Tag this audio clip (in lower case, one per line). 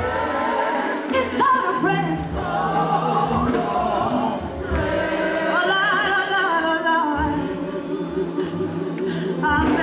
singing
gospel music